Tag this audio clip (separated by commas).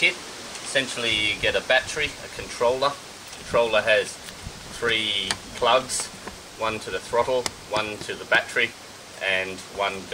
Speech